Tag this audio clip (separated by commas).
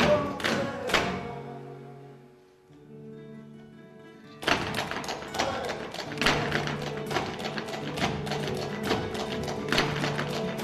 Music of Latin America, Music, Flamenco